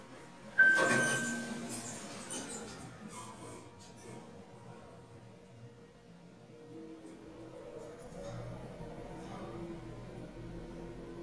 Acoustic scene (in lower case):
elevator